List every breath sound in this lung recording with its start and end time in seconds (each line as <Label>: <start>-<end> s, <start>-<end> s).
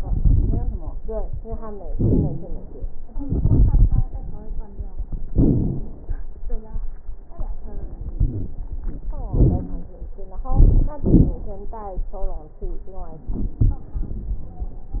Inhalation: 3.22-4.09 s, 8.18-8.54 s, 10.47-11.01 s, 13.33-13.85 s
Exhalation: 1.90-2.80 s, 5.29-6.11 s, 9.34-9.96 s, 10.99-11.53 s
Wheeze: 1.90-2.80 s, 8.18-8.54 s, 9.34-9.96 s
Crackles: 0.00-0.74 s, 3.22-4.09 s, 5.29-6.11 s, 10.47-10.99 s, 11.01-11.53 s, 13.33-13.85 s